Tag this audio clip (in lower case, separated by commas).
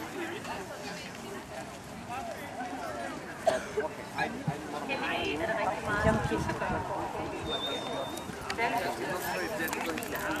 speech